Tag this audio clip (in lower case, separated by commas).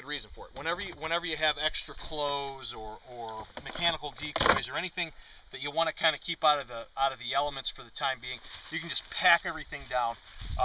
speech